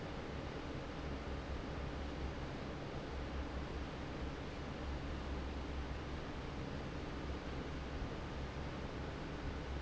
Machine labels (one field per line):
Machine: fan